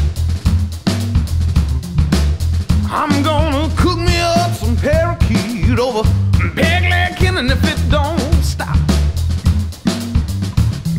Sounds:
funk
pop music
music
exciting music

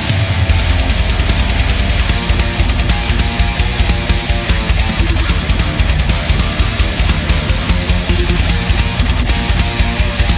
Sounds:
guitar
electric guitar
music
plucked string instrument
musical instrument

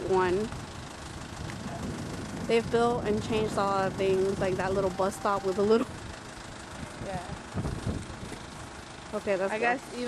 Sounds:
outside, urban or man-made
vehicle
speech

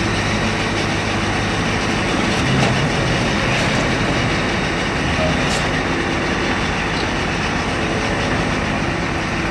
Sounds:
vehicle
speech

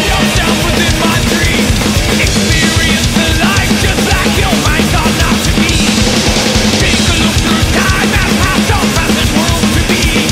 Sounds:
playing bass drum

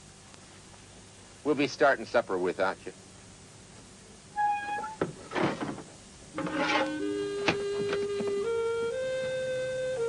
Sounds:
speech
music

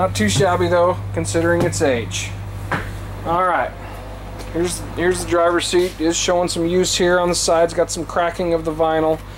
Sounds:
speech

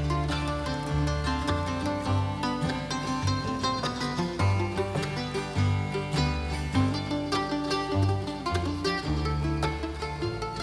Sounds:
music

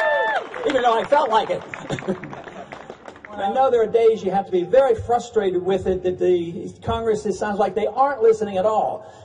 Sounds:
speech

